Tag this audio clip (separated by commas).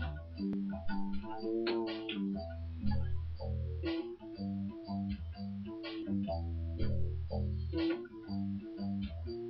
Music